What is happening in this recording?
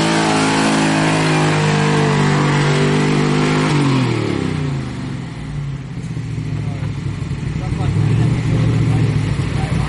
Speeding vehicle coming to a halt